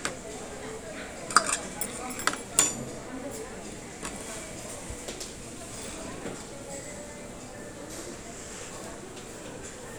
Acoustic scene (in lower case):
restaurant